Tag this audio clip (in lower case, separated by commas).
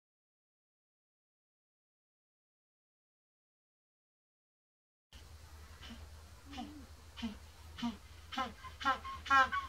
penguins braying